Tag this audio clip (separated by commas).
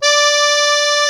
Accordion, Musical instrument, Music